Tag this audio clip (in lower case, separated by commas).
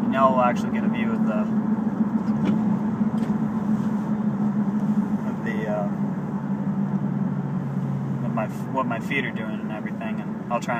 speech, car, vehicle